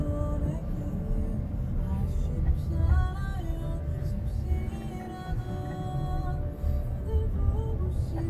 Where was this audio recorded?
in a car